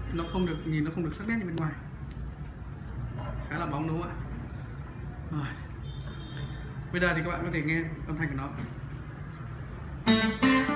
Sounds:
speech, music, plucked string instrument, guitar, acoustic guitar

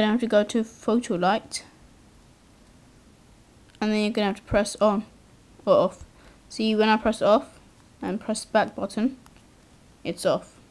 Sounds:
speech

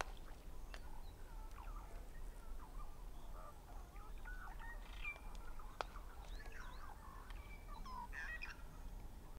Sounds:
animal

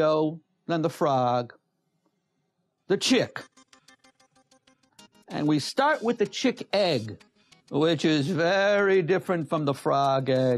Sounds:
speech, music

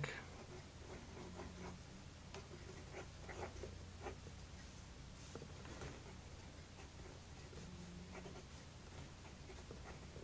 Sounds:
silence, inside a small room

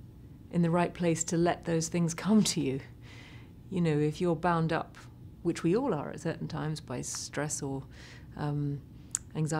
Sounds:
inside a small room, speech

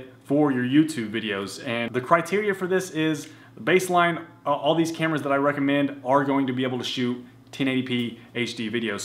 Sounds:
speech

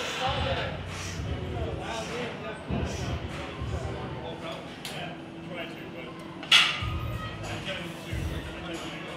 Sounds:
music, speech

